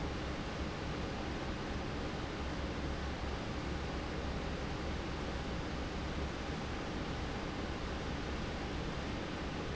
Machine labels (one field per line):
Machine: fan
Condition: normal